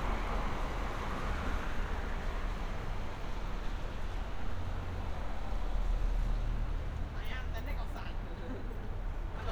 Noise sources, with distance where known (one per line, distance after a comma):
person or small group talking